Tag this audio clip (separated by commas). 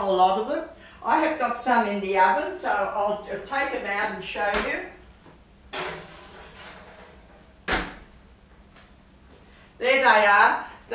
Speech, inside a small room